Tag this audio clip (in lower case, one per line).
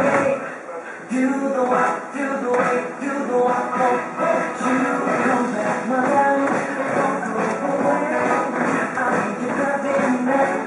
music